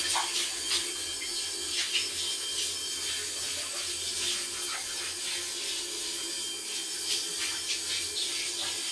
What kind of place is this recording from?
restroom